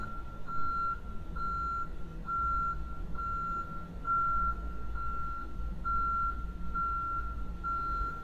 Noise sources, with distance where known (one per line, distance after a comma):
reverse beeper, near